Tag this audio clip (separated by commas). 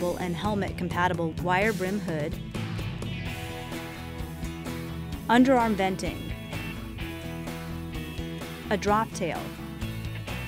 Speech, Music